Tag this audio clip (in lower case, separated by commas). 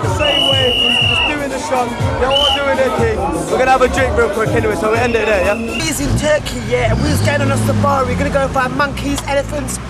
music, speech